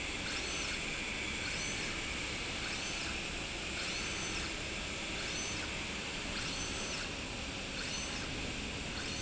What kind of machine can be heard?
slide rail